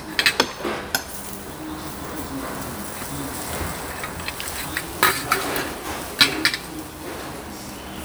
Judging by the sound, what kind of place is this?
restaurant